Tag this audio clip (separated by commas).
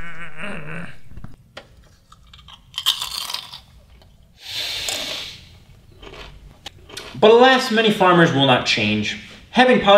Speech, inside a small room